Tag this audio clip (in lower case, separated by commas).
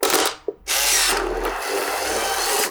camera, mechanisms